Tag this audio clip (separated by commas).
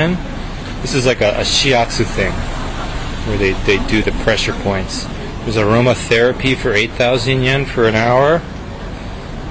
Speech, speech noise